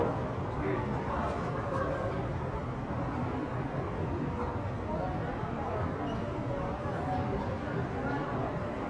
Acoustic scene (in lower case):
crowded indoor space